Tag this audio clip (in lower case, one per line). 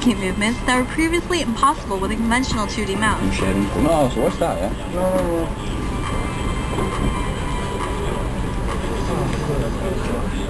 music
speech